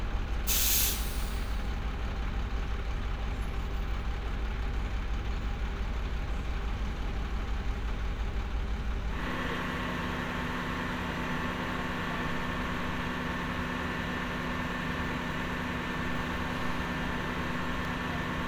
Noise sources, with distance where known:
large-sounding engine, near

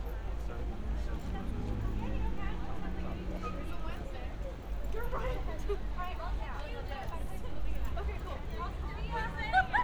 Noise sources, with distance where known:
person or small group talking, near

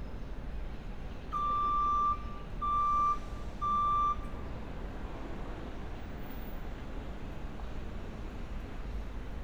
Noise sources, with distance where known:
reverse beeper, near

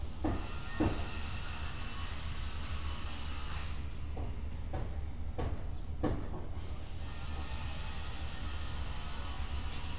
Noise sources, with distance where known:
unidentified powered saw, far

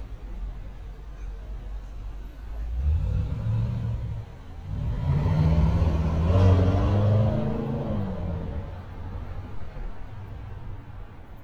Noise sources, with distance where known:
medium-sounding engine, near

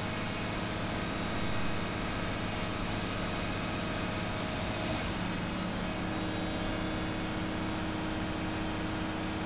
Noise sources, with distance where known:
engine of unclear size, near; unidentified powered saw, far

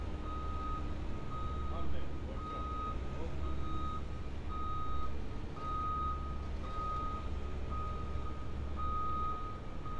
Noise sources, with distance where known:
reverse beeper, near

